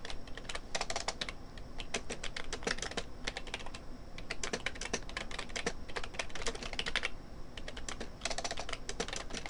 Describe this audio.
Computer keys being typed